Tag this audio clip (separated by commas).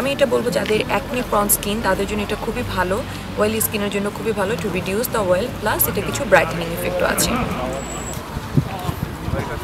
Speech